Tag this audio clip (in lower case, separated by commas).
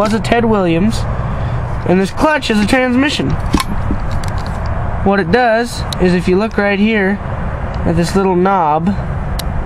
speech, heavy engine (low frequency)